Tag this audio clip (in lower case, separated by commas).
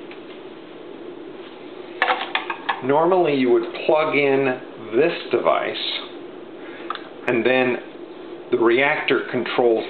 speech